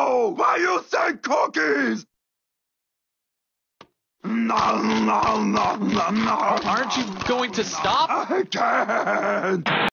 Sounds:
Speech

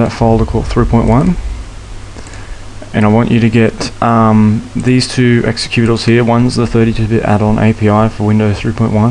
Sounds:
Speech

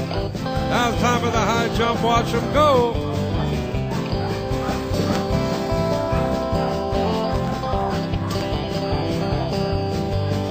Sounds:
Speech, Music

